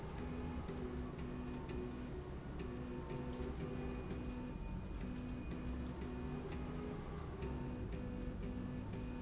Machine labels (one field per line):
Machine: slide rail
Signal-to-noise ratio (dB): 0 dB